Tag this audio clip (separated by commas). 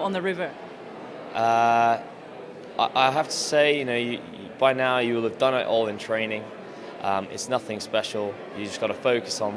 Speech